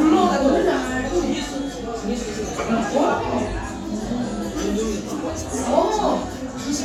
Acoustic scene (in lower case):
restaurant